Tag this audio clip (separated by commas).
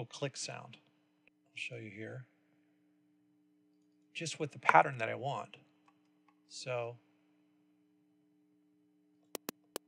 Tick